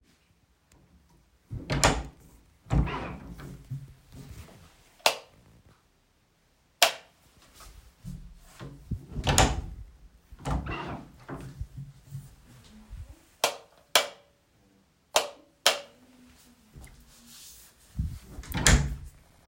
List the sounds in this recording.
door, light switch